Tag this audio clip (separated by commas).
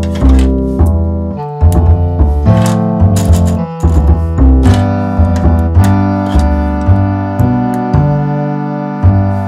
Music, Electronic tuner